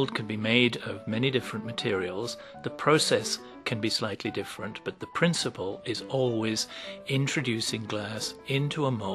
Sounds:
Speech, Music

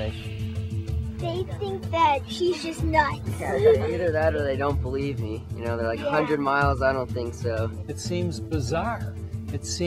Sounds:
Speech, Music

